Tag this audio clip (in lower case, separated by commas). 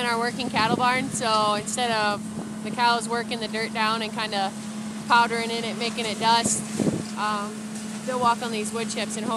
speech